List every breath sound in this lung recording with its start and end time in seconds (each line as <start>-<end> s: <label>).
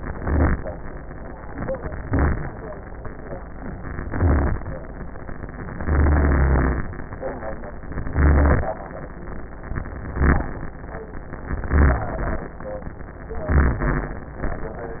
0.00-0.63 s: inhalation
2.01-2.64 s: inhalation
4.08-4.71 s: inhalation
5.75-6.87 s: inhalation
8.10-8.73 s: inhalation
10.00-10.63 s: inhalation
11.59-12.22 s: inhalation
13.51-14.27 s: inhalation